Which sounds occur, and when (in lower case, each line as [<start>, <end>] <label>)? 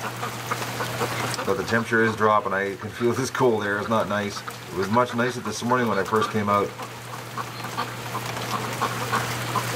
[0.00, 0.29] duck
[0.00, 9.75] rain on surface
[0.48, 1.33] duck
[1.27, 1.36] generic impact sounds
[1.35, 4.39] male speech
[2.75, 3.31] duck
[4.23, 5.45] duck
[4.63, 6.74] male speech
[6.72, 6.88] duck
[7.10, 9.75] duck
[8.23, 8.60] generic impact sounds